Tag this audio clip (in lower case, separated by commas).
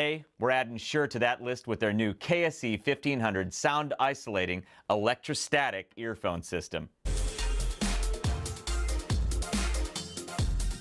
music, speech